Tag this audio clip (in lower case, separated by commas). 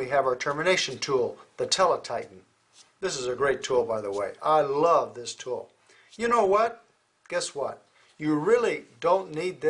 speech